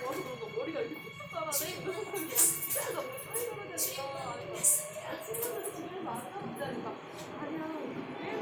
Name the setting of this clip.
subway train